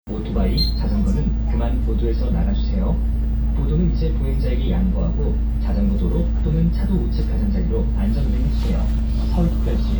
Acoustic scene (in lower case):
bus